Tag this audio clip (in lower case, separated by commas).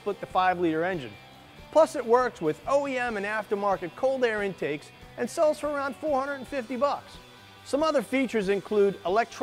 music, speech